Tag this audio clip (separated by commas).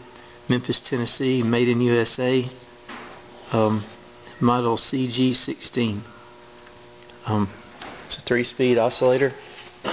Mechanical fan, Speech